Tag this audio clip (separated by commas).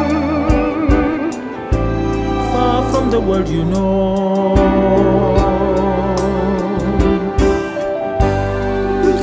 Opera, Music